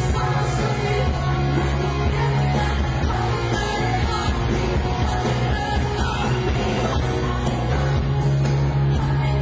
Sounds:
singing, rock music, music

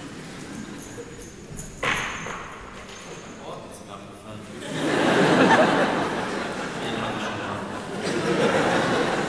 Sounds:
speech

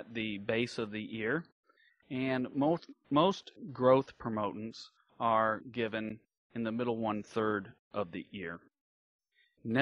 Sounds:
speech

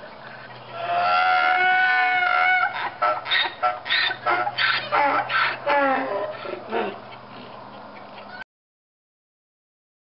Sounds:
animal

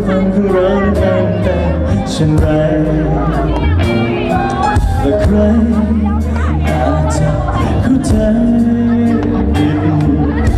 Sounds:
ska, music

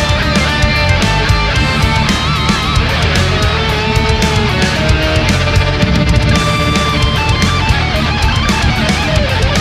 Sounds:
heavy metal, music

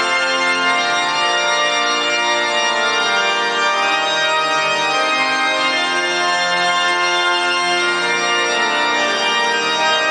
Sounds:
music

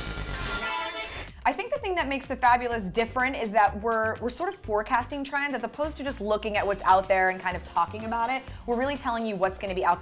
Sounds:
music, speech

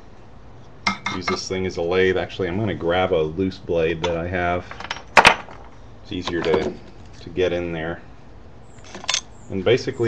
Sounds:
speech

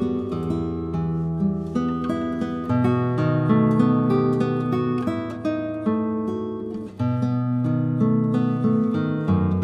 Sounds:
music, guitar, musical instrument, plucked string instrument

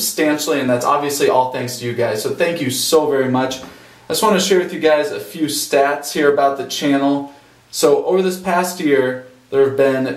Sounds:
speech

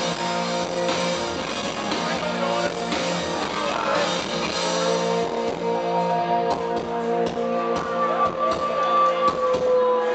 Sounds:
speech, music

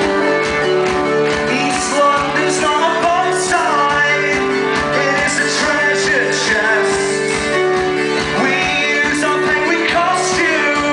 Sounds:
music, techno

